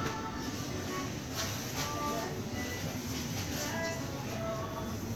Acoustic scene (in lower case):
crowded indoor space